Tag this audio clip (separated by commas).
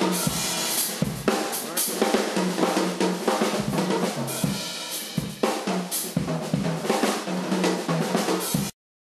Bass drum, Speech, Drum kit, Musical instrument, Music, Drum